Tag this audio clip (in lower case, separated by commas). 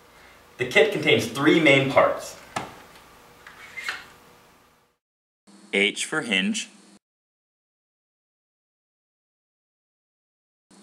speech